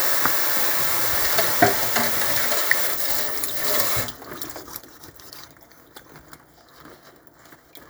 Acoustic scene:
kitchen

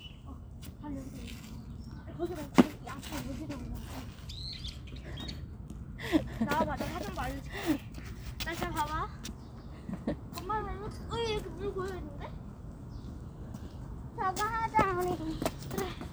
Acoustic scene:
park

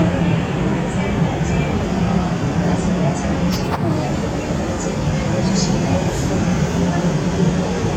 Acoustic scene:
subway train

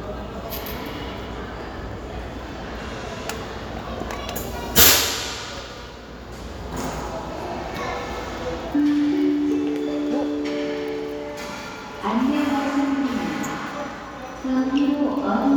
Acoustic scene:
crowded indoor space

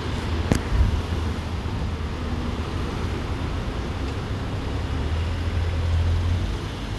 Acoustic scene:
residential area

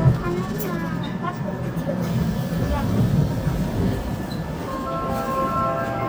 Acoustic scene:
subway train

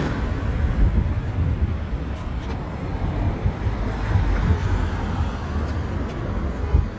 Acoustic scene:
residential area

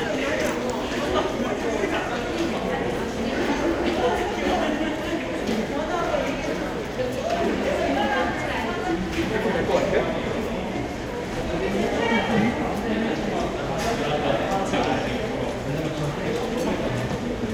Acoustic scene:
crowded indoor space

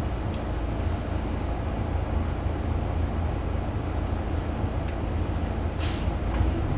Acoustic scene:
bus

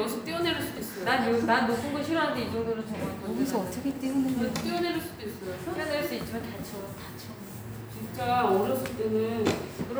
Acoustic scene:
cafe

